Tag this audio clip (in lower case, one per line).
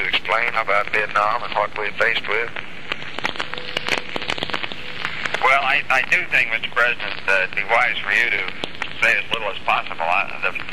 man speaking
speech